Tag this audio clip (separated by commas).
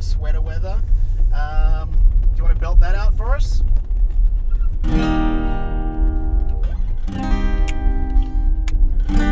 Music, Acoustic guitar, Speech